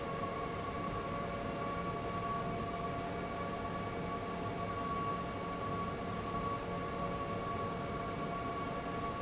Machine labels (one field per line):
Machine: fan